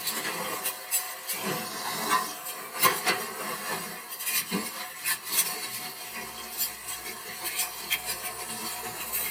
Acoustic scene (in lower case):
kitchen